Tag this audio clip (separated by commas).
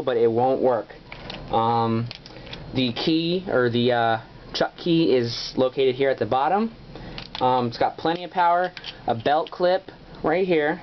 Speech